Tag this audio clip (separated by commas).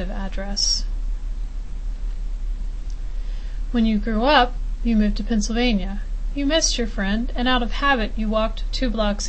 Speech